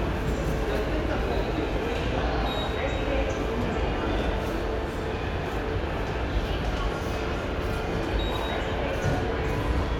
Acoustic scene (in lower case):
subway station